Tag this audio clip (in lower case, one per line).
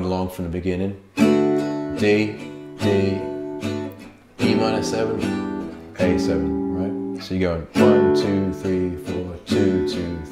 strum
acoustic guitar
plucked string instrument
music
musical instrument
guitar
speech